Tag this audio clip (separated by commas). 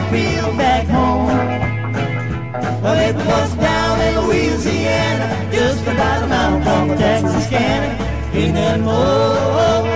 Music